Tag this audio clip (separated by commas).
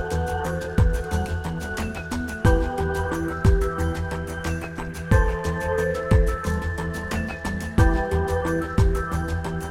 Music